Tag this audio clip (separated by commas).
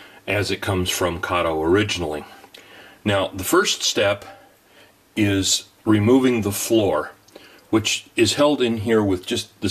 Speech